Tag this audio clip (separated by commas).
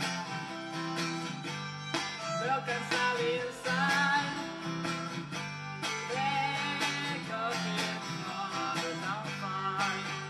fiddle, Music, Musical instrument